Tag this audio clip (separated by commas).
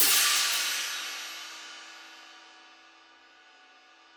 Cymbal, Percussion, Hi-hat, Music, Musical instrument